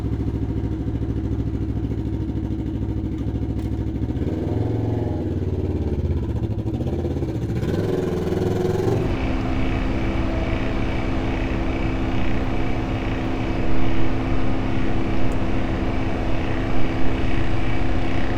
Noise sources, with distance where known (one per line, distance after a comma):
engine of unclear size, near